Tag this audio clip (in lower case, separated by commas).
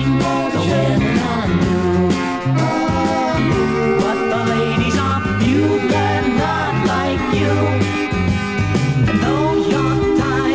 music